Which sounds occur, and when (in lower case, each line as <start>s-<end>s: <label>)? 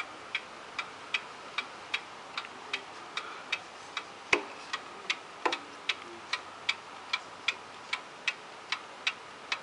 0.0s-9.6s: mechanisms
0.3s-0.4s: tick
0.8s-0.8s: tick
1.1s-1.2s: tick
1.6s-1.6s: tick
1.9s-2.0s: tick
2.4s-2.4s: tick
2.5s-2.9s: male speech
2.7s-2.8s: tick
3.1s-3.5s: breathing
3.1s-3.2s: tick
3.5s-3.6s: tick
3.9s-4.0s: tick
4.3s-4.5s: generic impact sounds
4.7s-4.8s: tick
4.9s-5.3s: male speech
5.1s-5.2s: tick
5.4s-5.6s: generic impact sounds
5.9s-6.0s: tick
6.0s-6.3s: male speech
6.3s-6.4s: tick
6.7s-6.7s: tick
7.1s-7.2s: tick
7.5s-7.6s: tick
7.9s-8.0s: tick
8.3s-8.3s: tick
8.7s-8.8s: tick
9.1s-9.1s: tick
9.5s-9.6s: tick